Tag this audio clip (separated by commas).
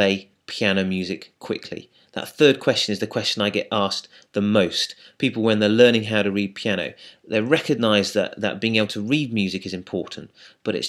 Speech